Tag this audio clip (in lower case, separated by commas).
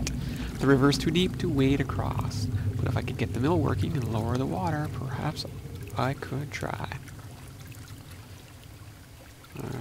speech, pour